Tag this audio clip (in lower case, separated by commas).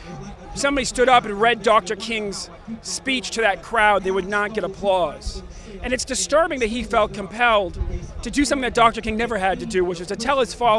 monologue, man speaking, speech